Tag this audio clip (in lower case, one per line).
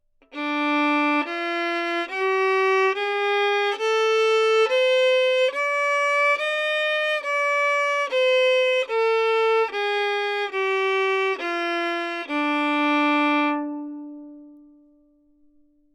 musical instrument
music
bowed string instrument